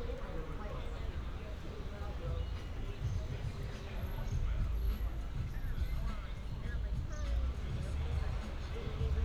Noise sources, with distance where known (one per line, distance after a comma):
music from a moving source
person or small group talking